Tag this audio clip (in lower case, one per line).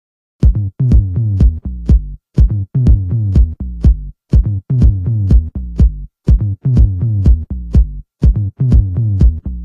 drum machine
music